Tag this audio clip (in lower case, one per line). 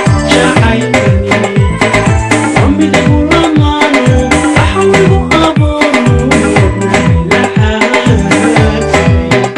middle eastern music
music